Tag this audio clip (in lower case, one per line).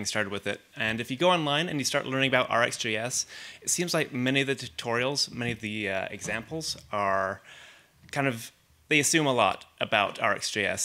speech